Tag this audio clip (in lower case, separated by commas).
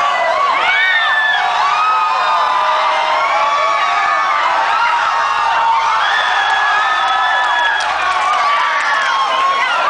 inside a large room or hall